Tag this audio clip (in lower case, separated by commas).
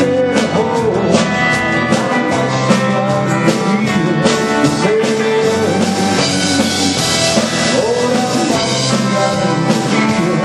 music, theme music, country